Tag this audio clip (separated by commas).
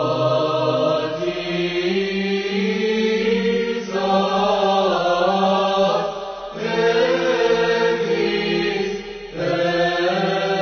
Vocal music, Chant